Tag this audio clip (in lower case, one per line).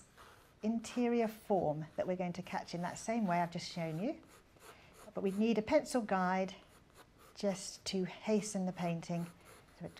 speech